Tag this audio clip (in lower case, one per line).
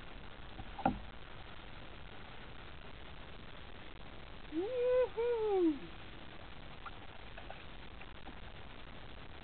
wind noise (microphone)
wind